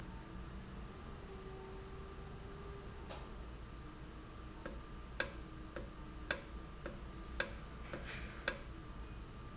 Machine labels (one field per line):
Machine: valve